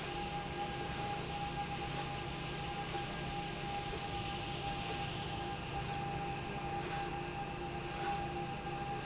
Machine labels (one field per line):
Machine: slide rail